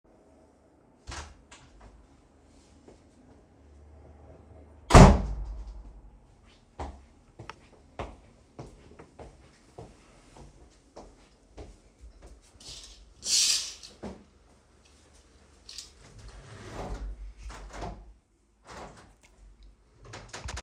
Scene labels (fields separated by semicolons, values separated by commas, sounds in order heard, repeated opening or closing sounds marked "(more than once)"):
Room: bedroom; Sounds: door (more than once), footsteps, window (more than once)